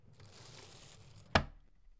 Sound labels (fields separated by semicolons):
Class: drawer; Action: closing; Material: wooden